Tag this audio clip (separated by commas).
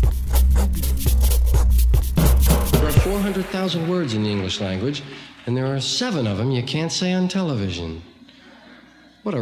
Speech, Music, Scratch